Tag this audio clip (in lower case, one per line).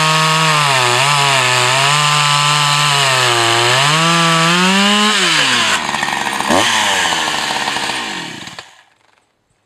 tools
chainsaw